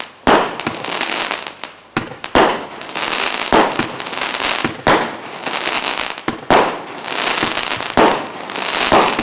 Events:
0.0s-9.2s: firecracker

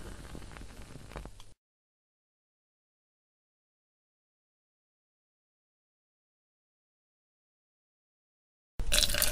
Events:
0.0s-1.5s: noise
1.3s-1.4s: tap
8.8s-9.3s: pour

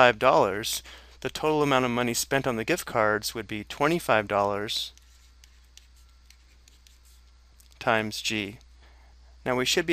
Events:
0.0s-0.8s: male speech
0.0s-9.9s: background noise
0.8s-1.1s: breathing
1.2s-4.9s: male speech
4.9s-7.8s: writing
7.7s-8.6s: male speech
8.8s-9.3s: breathing
9.4s-9.9s: male speech

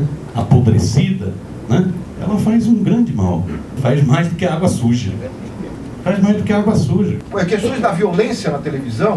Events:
0.0s-9.1s: background noise
0.3s-1.3s: man speaking
1.6s-2.0s: man speaking
2.1s-3.5s: man speaking
3.7s-5.3s: man speaking
6.0s-9.1s: man speaking

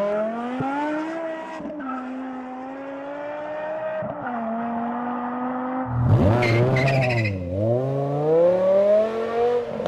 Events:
0.0s-9.8s: vroom
0.0s-9.8s: car
0.5s-0.6s: tick
4.0s-4.1s: tick
6.1s-7.3s: tire squeal
9.8s-9.8s: tick

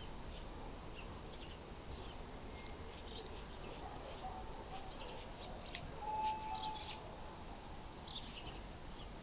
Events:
0.0s-9.2s: bird song
0.0s-9.2s: mechanisms
0.2s-0.5s: flap
1.8s-2.1s: flap
2.5s-4.2s: flap
3.6s-7.6s: bark
4.6s-5.3s: flap
5.6s-5.9s: flap
6.0s-6.8s: vehicle horn
6.2s-6.4s: flap
6.7s-7.0s: flap
8.0s-8.6s: flap

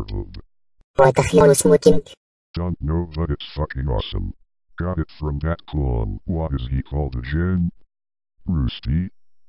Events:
0.0s-0.5s: background noise
0.0s-0.5s: speech synthesizer
0.0s-0.1s: generic impact sounds
0.3s-0.4s: generic impact sounds
0.7s-0.9s: generic impact sounds
0.9s-2.2s: speech synthesizer
0.9s-2.2s: background noise
2.5s-4.4s: speech synthesizer
2.5s-4.5s: background noise
4.7s-7.8s: speech synthesizer
4.8s-7.9s: background noise
8.4s-9.1s: background noise
8.4s-9.2s: speech synthesizer

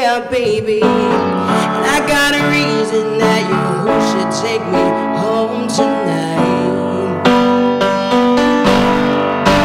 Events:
0.0s-1.1s: male singing
0.0s-9.6s: music
1.4s-1.7s: breathing
1.8s-4.9s: male singing
5.1s-7.1s: male singing

